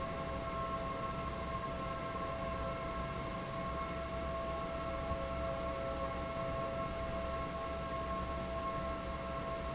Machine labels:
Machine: fan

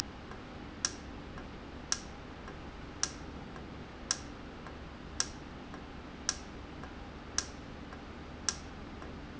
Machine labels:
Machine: valve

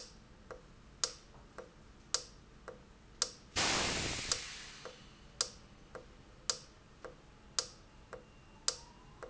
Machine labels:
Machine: valve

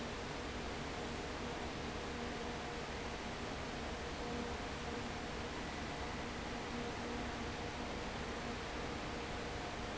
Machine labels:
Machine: fan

